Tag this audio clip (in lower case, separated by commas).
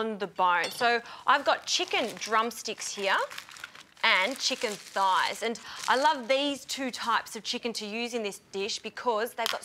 speech